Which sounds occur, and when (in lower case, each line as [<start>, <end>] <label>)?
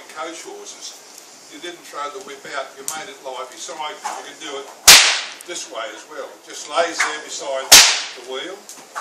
[0.00, 9.00] rustle
[0.07, 0.86] male speech
[1.47, 3.11] male speech
[2.13, 2.23] generic impact sounds
[2.78, 2.98] generic impact sounds
[3.22, 4.65] male speech
[4.00, 4.26] swoosh
[4.84, 5.33] whip
[5.26, 5.42] generic impact sounds
[5.42, 7.67] male speech
[6.95, 7.18] whip
[7.66, 8.00] whip
[8.14, 8.55] male speech
[8.61, 9.00] swoosh
[8.64, 8.82] generic impact sounds